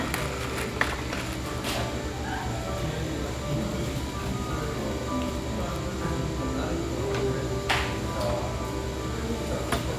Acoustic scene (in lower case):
cafe